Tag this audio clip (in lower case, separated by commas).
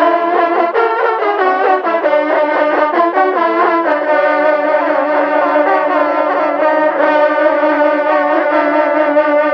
music, trumpet